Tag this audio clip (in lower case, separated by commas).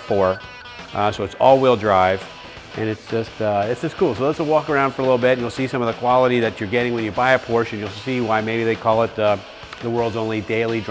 music, speech